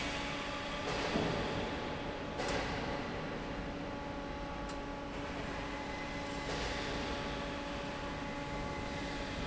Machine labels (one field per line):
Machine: fan